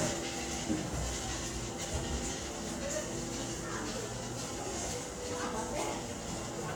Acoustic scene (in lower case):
subway station